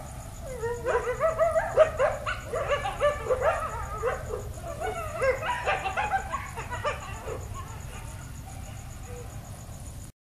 Multiple dogs whimpering with faint reverberating background noise